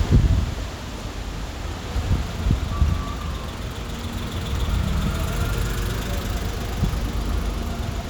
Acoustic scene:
street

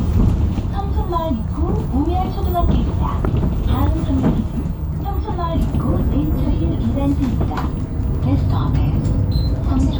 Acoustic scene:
bus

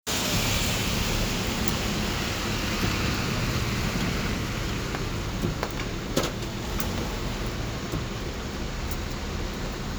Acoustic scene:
street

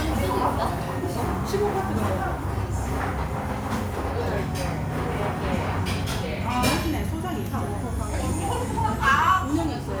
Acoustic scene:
restaurant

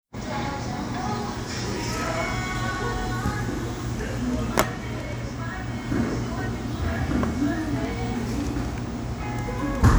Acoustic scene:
cafe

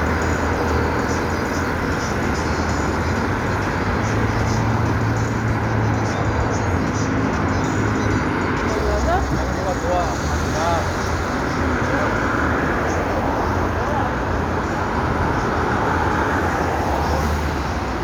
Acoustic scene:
street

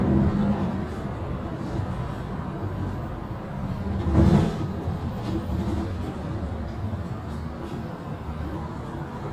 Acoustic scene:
bus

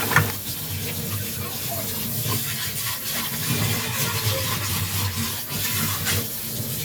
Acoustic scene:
kitchen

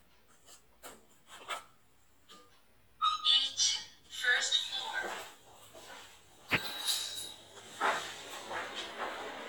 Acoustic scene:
elevator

